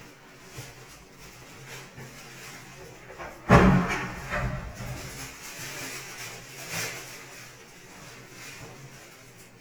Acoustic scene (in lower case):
restroom